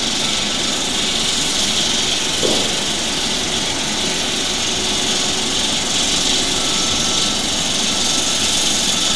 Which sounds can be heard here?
jackhammer